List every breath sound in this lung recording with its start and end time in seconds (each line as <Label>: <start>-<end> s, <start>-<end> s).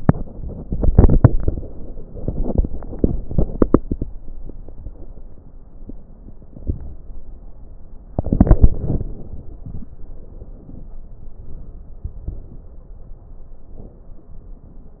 Inhalation: 0.27-2.03 s, 8.12-9.62 s
Exhalation: 2.03-4.36 s
Crackles: 0.26-2.00 s, 2.03-4.36 s, 8.12-9.62 s